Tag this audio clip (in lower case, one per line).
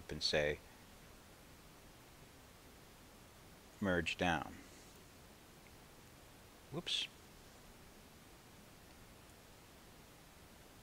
speech